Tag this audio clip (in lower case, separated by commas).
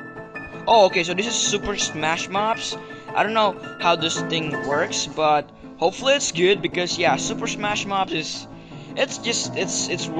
speech, music